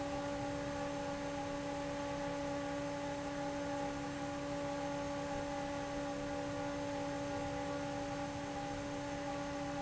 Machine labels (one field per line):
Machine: fan